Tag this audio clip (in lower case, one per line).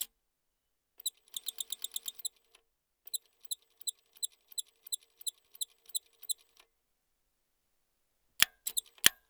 mechanisms